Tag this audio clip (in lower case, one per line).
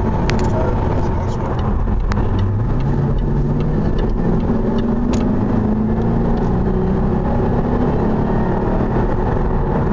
vehicle
accelerating
car